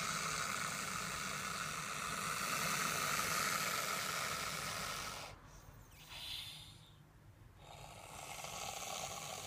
A snake is hissing